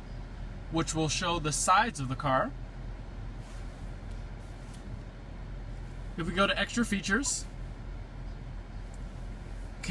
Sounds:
speech

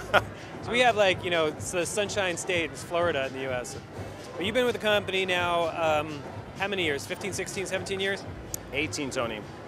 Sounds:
music
speech

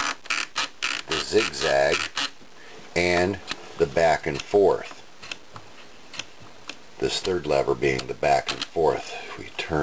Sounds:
speech

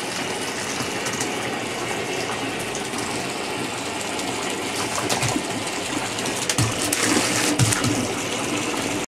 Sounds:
gurgling

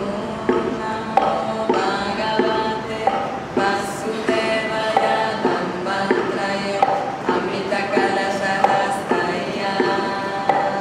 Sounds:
mantra
music

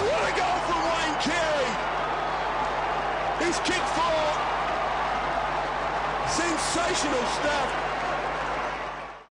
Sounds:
speech

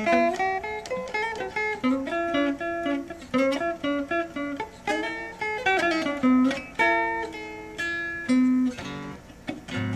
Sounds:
strum
musical instrument
guitar
music
plucked string instrument

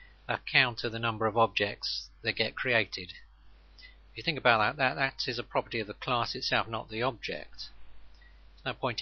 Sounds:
speech

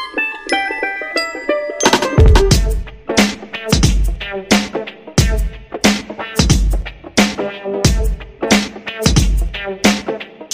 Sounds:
music

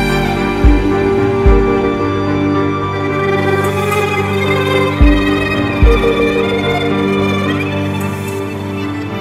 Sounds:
music
background music

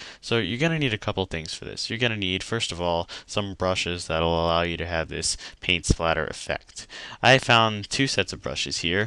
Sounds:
speech

